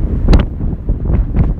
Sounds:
Wind

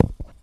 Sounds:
thud

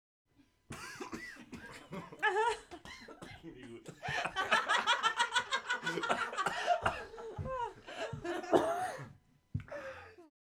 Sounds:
Human voice, Laughter

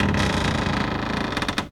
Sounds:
Cupboard open or close, home sounds, Door

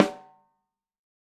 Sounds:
Percussion, Snare drum, Musical instrument, Drum, Music

